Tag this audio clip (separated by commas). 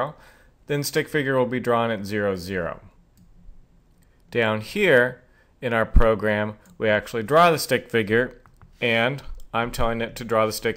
Speech